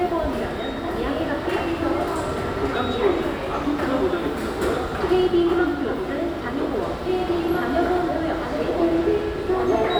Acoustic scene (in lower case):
subway station